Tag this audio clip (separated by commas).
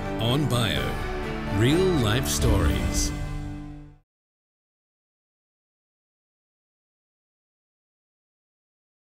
Speech, Music